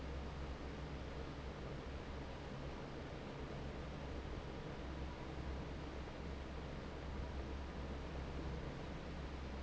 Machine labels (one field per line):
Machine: fan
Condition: normal